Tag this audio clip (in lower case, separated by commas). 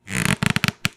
squeak